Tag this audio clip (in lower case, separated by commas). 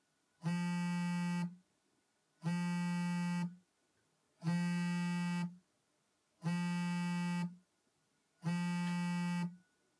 telephone, alarm